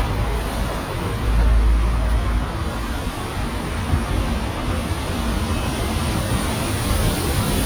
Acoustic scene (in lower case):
street